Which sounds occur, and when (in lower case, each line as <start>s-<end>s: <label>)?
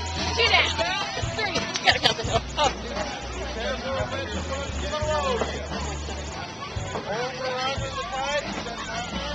0.0s-9.3s: hubbub
0.0s-9.3s: music
0.3s-0.7s: female speech
0.7s-1.1s: male speech
1.3s-1.7s: male speech
1.4s-2.4s: female speech
2.5s-2.9s: female speech
3.5s-5.6s: male speech
7.0s-9.3s: male speech